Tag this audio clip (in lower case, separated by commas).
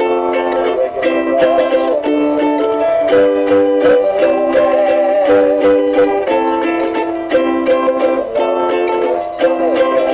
harmonica, mandolin, music